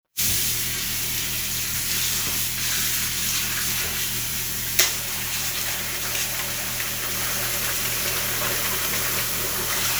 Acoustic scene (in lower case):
restroom